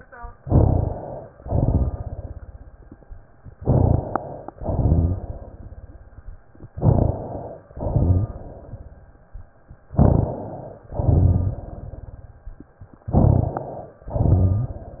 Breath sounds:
0.34-1.27 s: inhalation
0.34-1.27 s: crackles
1.39-2.32 s: exhalation
1.39-3.09 s: crackles
3.61-4.50 s: inhalation
3.61-4.50 s: crackles
4.57-5.50 s: exhalation
4.57-6.28 s: crackles
6.75-7.65 s: inhalation
6.75-7.65 s: crackles
7.76-8.82 s: exhalation
7.76-9.24 s: crackles
9.94-10.85 s: inhalation
9.94-10.85 s: crackles
11.01-12.39 s: exhalation
11.01-12.54 s: crackles
13.11-14.08 s: inhalation
13.11-14.08 s: crackles
14.12-15.00 s: exhalation
14.12-15.00 s: crackles

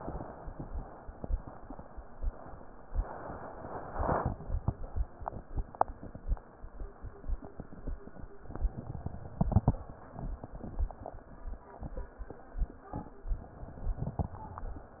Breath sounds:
8.48-9.77 s: inhalation
13.32-14.48 s: inhalation

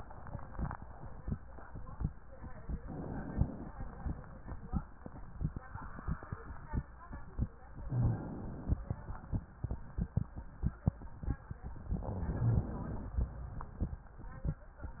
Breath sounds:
2.80-3.73 s: inhalation
7.87-8.80 s: inhalation
7.89-8.17 s: rhonchi
11.97-13.18 s: inhalation
12.39-12.64 s: rhonchi

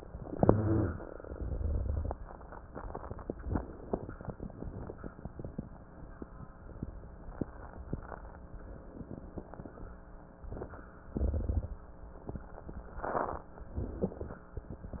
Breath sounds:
0.15-1.17 s: inhalation
0.15-1.17 s: crackles
1.18-2.41 s: exhalation
1.18-2.41 s: crackles
3.30-4.13 s: inhalation
3.30-4.13 s: crackles
4.14-5.74 s: exhalation
4.15-5.74 s: crackles
8.54-10.41 s: inhalation
8.54-10.41 s: crackles
10.42-12.23 s: exhalation
10.42-12.23 s: crackles
12.84-13.68 s: inhalation
12.84-13.68 s: crackles
13.69-15.00 s: exhalation
13.69-15.00 s: crackles

